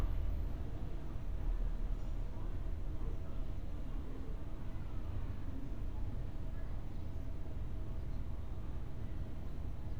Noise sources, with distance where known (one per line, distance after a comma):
unidentified human voice, far